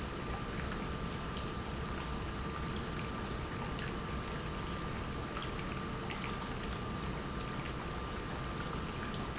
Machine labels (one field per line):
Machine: pump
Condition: normal